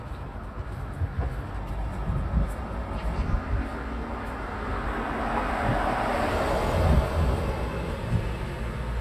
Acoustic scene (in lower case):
street